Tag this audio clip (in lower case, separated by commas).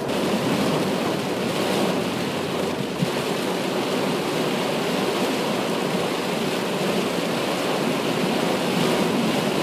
motor vehicle (road), car, vehicle, rain